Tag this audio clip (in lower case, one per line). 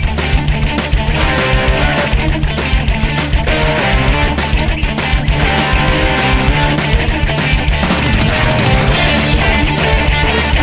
music